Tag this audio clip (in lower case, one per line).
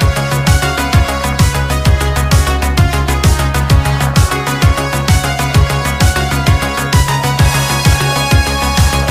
music